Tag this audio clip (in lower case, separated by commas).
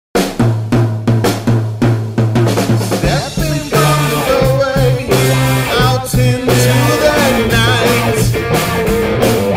bass drum, hi-hat, drum kit, drum